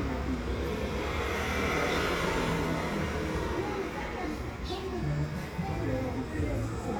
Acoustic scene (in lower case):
residential area